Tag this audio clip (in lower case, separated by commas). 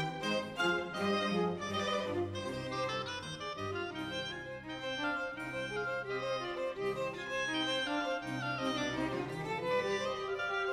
violin, music, musical instrument